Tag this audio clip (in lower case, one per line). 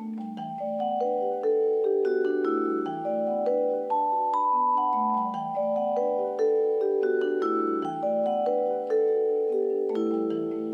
music
percussion